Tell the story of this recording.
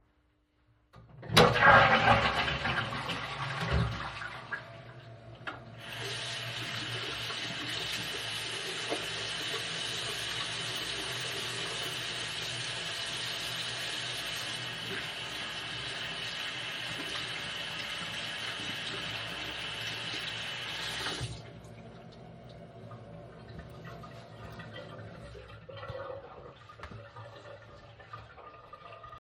I flushed the toilet and then proceeded to wash my hands